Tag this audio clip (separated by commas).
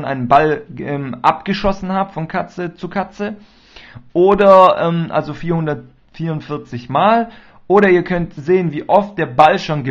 Speech